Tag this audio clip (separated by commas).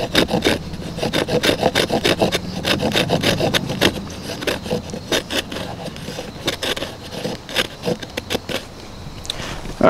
outside, rural or natural, Speech